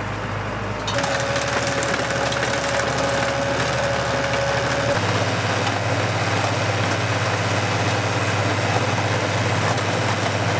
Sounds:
tractor digging

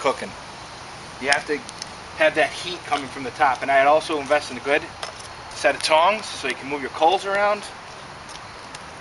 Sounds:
Speech

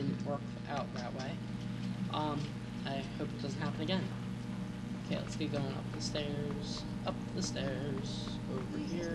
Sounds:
Speech

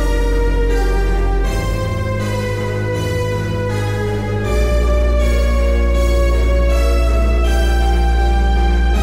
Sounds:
Synthesizer, Music

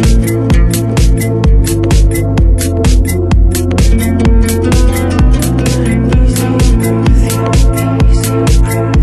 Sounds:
Music

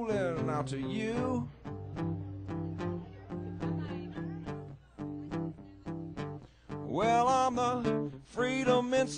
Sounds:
Plucked string instrument, Guitar, Music, Speech, Strum, Musical instrument

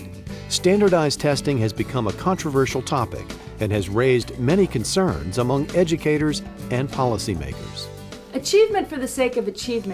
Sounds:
Speech, Music

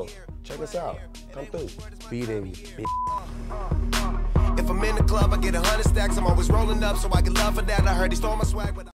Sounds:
Music

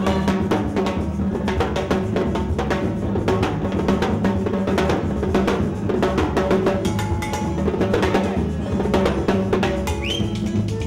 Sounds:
Music, Wood block, Percussion

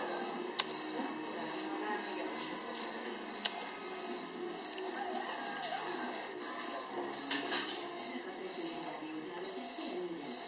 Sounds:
Music, Speech, Printer, printer printing

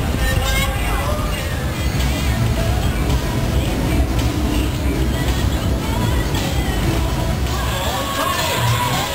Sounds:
Speech, Music

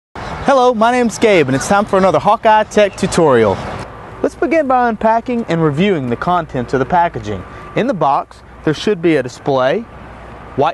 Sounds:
Vehicle, Speech

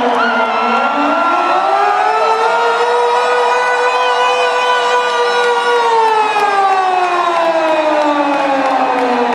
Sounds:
Siren

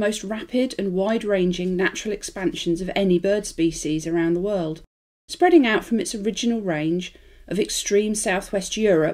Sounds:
Speech

